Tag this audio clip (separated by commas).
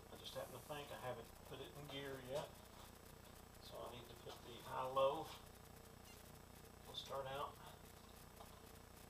Speech